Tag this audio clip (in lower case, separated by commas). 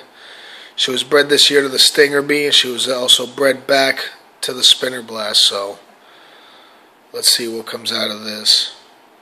speech, inside a small room